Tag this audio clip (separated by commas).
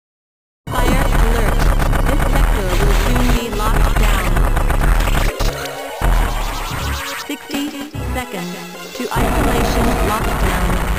Speech, Music